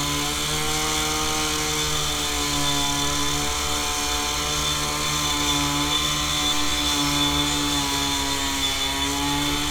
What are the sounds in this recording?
chainsaw